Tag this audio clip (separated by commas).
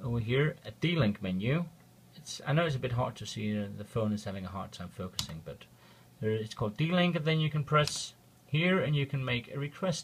Speech